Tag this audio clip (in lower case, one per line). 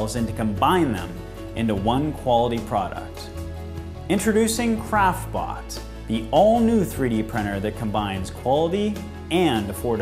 music
speech